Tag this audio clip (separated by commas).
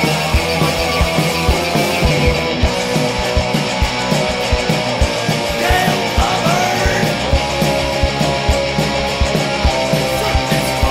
Strum, Electric guitar, Guitar, Musical instrument, Plucked string instrument, Music